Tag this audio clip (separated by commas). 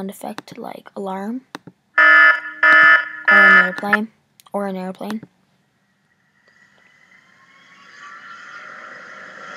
Speech, Alarm